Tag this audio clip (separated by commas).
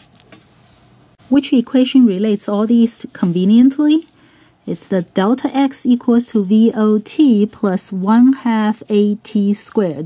Speech